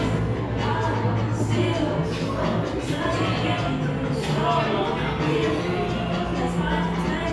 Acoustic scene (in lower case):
cafe